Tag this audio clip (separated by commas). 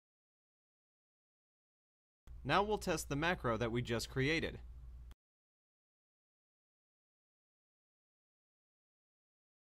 mouse clicking